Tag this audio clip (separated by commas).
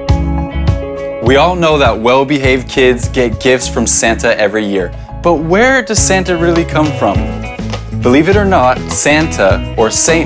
Music, Speech